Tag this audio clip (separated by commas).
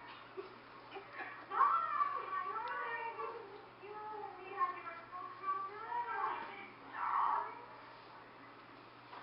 Speech